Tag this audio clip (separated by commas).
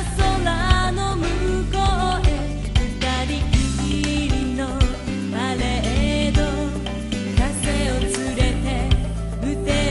Music